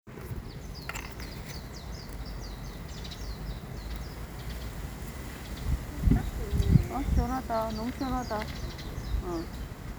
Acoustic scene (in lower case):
park